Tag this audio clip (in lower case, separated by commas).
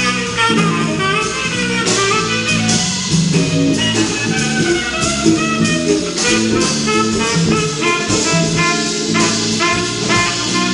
brass instrument, jazz, musical instrument, music, saxophone, guitar, plucked string instrument